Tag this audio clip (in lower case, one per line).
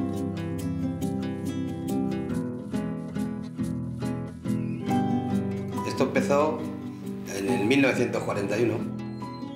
music
speech